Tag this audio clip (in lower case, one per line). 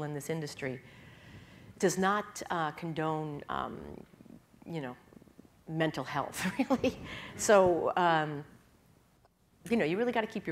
speech